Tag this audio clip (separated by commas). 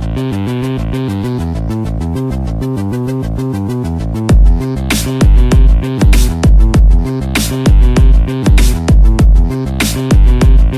Music